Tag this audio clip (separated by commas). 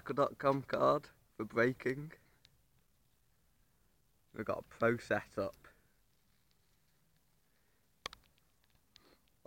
Speech